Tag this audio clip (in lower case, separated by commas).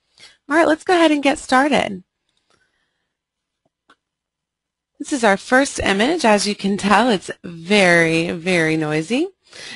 speech